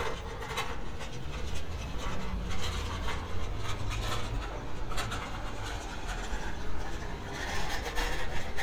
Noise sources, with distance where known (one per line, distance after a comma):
engine of unclear size
non-machinery impact, near